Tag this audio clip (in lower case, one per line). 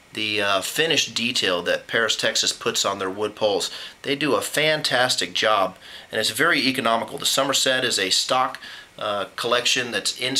speech